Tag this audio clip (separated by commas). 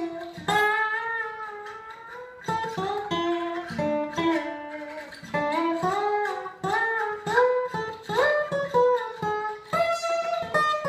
Strum, Guitar, Plucked string instrument, Musical instrument, Music